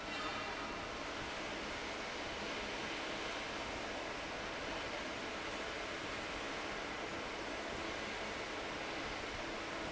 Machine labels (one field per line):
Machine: fan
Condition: abnormal